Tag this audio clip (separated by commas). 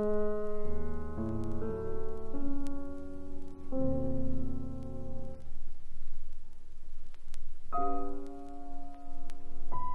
Music, Musical instrument